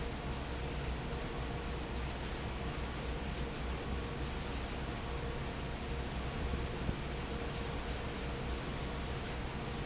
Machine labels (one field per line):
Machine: fan